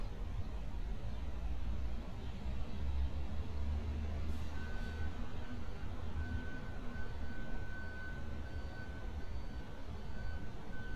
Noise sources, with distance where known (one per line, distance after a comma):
unidentified alert signal, far